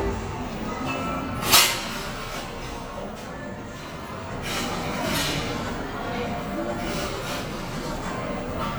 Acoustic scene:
cafe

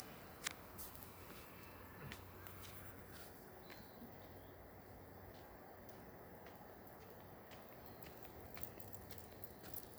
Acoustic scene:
park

